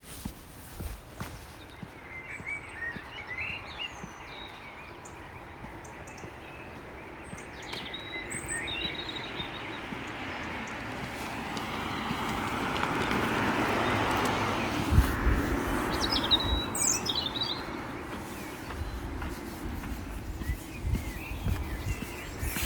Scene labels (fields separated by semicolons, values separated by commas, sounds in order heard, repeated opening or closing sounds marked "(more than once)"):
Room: office; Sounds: footsteps